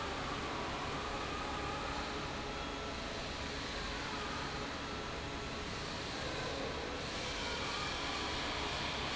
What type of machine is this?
fan